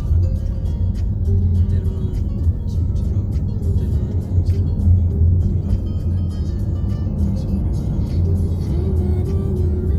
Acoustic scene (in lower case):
car